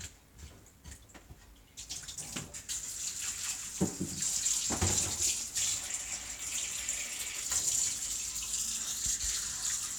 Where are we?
in a kitchen